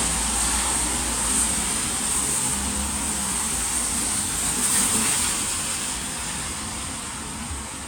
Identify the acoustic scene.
street